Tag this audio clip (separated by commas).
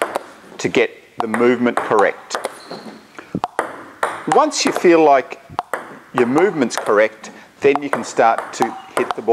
playing table tennis